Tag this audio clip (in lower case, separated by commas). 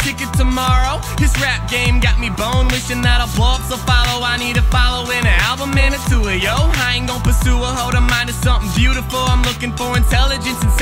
music, soundtrack music